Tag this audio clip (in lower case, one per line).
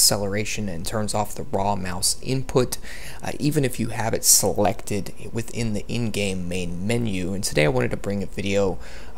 speech